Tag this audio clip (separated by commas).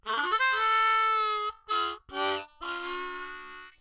Musical instrument, Harmonica, Music